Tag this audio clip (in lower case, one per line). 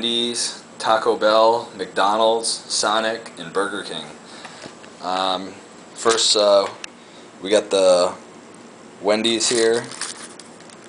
speech